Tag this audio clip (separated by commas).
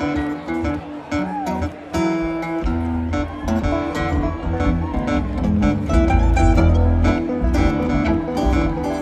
Speech, Music